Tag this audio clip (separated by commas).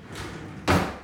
Drawer open or close, home sounds